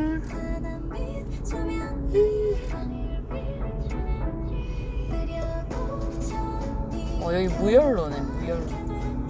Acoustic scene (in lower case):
car